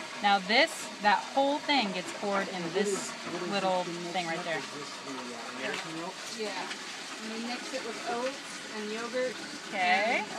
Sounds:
speech

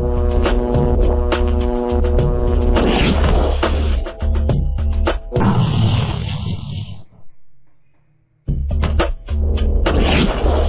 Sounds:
music

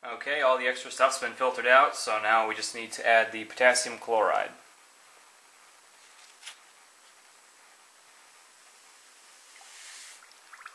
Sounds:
speech

